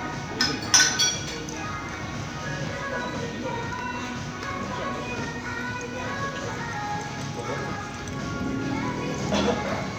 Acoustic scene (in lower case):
crowded indoor space